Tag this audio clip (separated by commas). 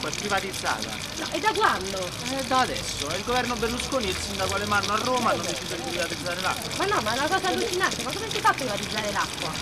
Speech, Water